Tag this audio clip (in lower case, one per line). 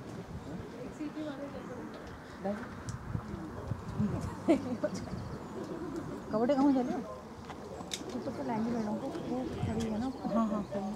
speech